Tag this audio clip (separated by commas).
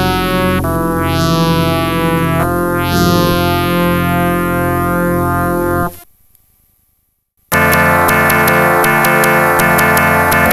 playing synthesizer